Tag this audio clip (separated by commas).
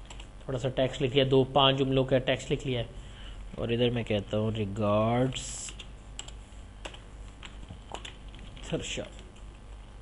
Computer keyboard